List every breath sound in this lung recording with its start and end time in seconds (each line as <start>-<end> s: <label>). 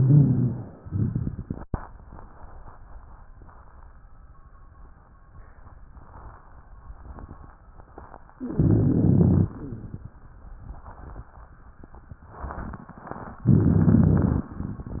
0.00-0.74 s: inhalation
0.00-0.74 s: rhonchi
0.83-1.67 s: exhalation
0.83-1.67 s: crackles
8.52-9.54 s: inhalation
8.52-9.54 s: rhonchi
9.54-10.13 s: exhalation
9.54-10.13 s: crackles
13.49-14.51 s: inhalation
13.49-14.51 s: crackles